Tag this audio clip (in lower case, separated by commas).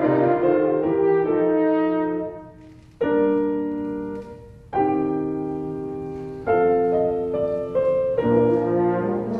piano, music, brass instrument, musical instrument, playing french horn, french horn